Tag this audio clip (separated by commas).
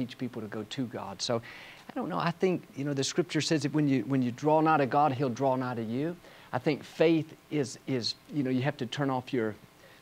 Speech